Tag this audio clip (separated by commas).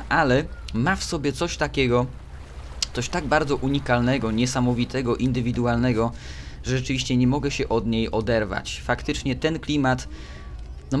Speech